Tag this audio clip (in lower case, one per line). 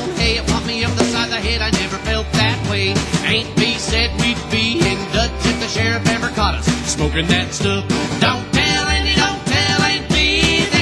music